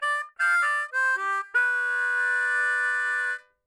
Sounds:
harmonica, musical instrument, music

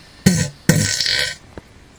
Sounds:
fart

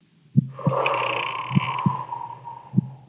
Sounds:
respiratory sounds, breathing

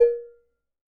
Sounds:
dishes, pots and pans, domestic sounds

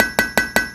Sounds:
tools

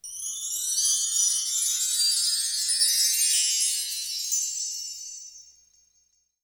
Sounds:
bell, chime, wind chime

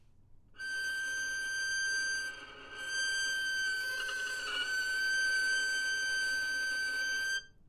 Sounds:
bowed string instrument, musical instrument, music

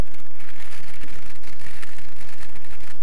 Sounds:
crackle, fire

